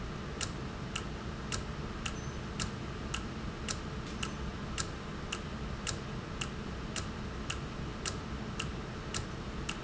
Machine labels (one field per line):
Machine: valve